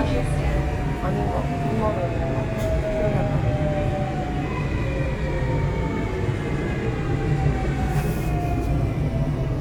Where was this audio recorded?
on a subway train